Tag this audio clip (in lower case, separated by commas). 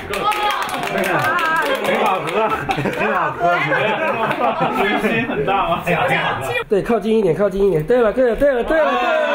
speech